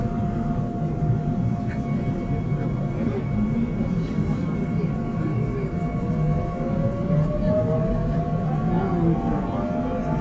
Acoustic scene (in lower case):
subway train